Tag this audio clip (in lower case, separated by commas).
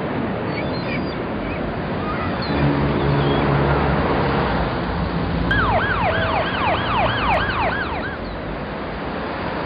outside, urban or man-made, music